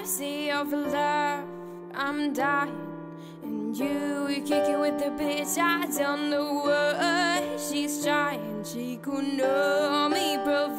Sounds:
Music

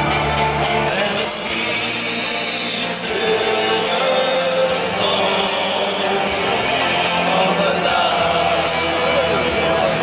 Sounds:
Speech, Music

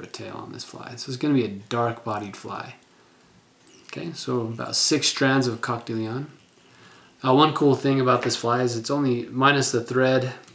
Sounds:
Speech

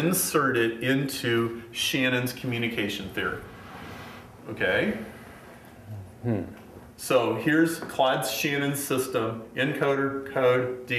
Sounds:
Speech

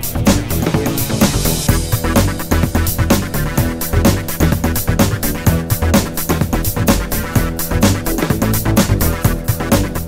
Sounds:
Music

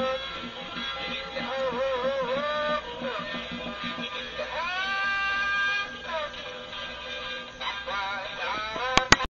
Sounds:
Music, Synthetic singing

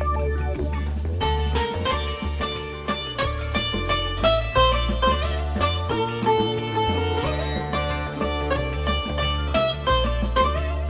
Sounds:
playing sitar

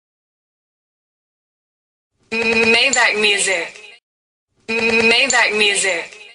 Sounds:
Speech

